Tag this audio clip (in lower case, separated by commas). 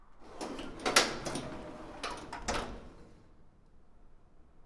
domestic sounds, door